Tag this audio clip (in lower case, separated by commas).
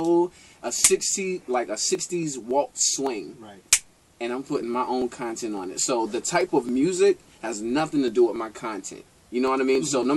speech